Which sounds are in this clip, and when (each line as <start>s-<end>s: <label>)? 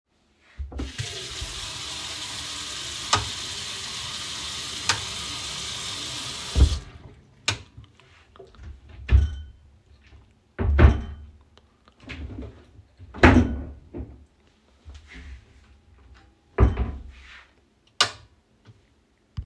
0.5s-7.1s: running water
3.0s-3.4s: light switch
4.7s-5.1s: light switch
7.3s-7.9s: light switch
8.8s-9.5s: wardrobe or drawer
10.4s-11.3s: wardrobe or drawer
12.0s-12.5s: wardrobe or drawer
13.0s-14.4s: wardrobe or drawer
16.4s-17.4s: wardrobe or drawer
17.8s-18.3s: light switch